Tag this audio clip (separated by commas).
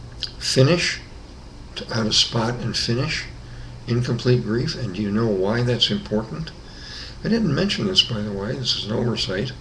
Speech